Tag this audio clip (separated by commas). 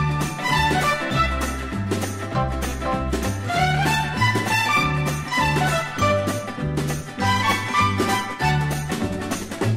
Music